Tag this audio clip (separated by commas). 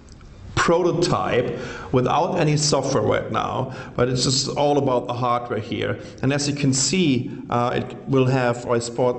Speech